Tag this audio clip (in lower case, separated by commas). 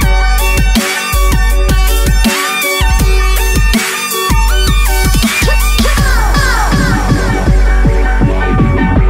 music